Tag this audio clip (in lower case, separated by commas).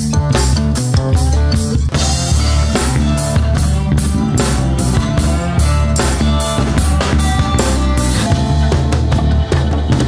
music